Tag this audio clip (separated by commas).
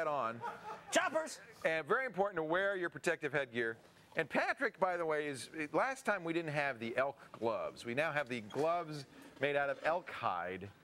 Speech